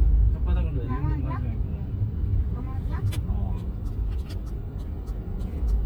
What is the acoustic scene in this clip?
car